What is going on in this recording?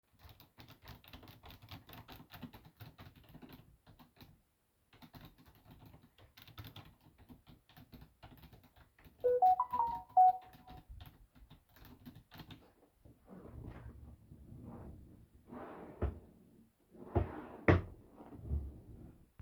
I was typing on my keyboard then i got a notification on my phone. Then i searched the drawers on my desk for something.